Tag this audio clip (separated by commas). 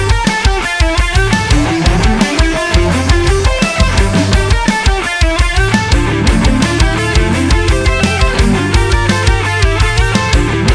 Drum kit, Drum, Music, Musical instrument